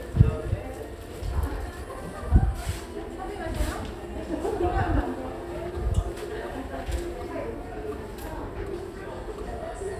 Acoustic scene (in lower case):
crowded indoor space